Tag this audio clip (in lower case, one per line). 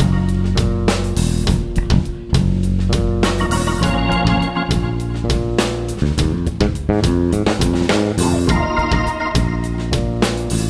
music